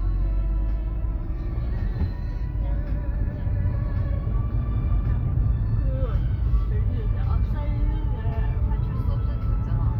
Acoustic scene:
car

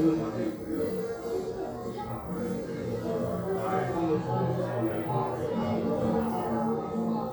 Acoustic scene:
crowded indoor space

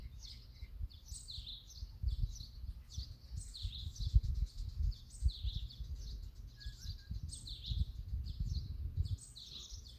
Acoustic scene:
park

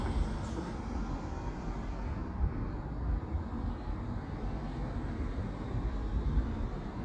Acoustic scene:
residential area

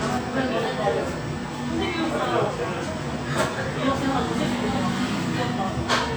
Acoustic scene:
cafe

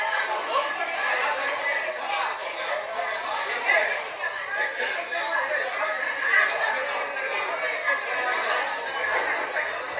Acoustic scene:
crowded indoor space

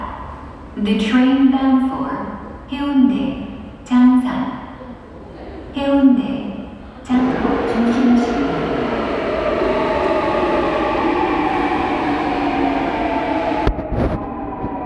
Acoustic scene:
subway station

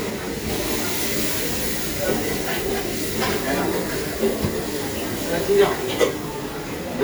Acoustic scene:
restaurant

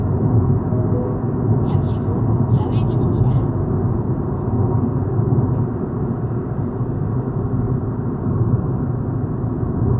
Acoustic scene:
car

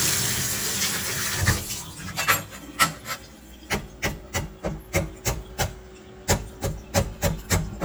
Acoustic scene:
kitchen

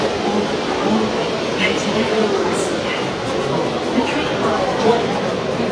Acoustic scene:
subway station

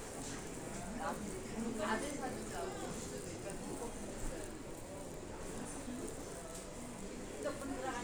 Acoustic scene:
crowded indoor space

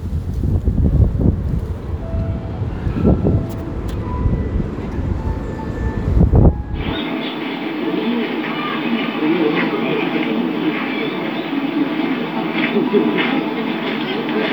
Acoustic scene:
park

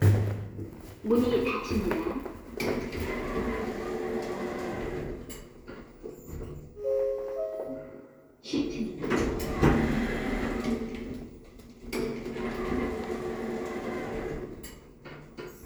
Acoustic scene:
elevator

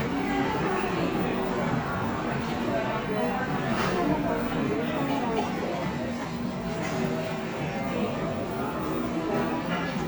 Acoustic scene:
cafe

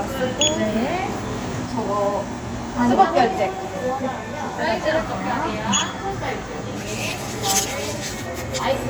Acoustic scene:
crowded indoor space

